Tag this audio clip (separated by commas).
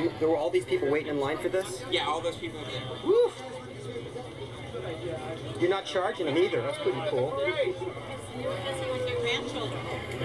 Speech